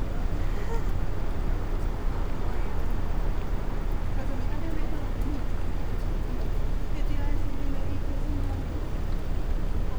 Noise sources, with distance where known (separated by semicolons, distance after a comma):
person or small group talking, near